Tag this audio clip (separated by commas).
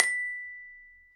Musical instrument, Music, Mallet percussion, Glockenspiel, Percussion